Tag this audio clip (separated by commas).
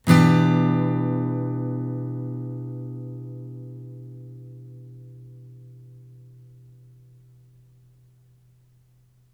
Plucked string instrument, Guitar, Acoustic guitar, Music, Strum, Musical instrument